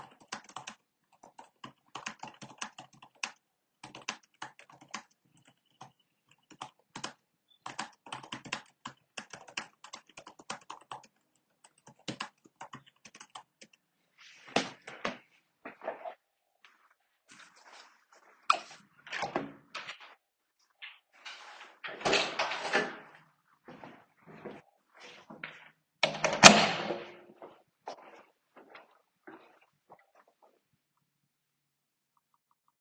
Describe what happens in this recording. I typed on the computer, and the keyboard typing is audible. I then stood up from the chair, and chair movement is slightly audible, before closing the computer. After that, I walked to the light switch and turned off the light. I then opened the first door, opened the second door, went out, closed the second door behind me, and finally walked through the hallway.